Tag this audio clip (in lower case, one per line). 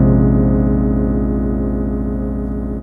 musical instrument
keyboard (musical)
music
piano